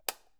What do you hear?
plastic switch being turned off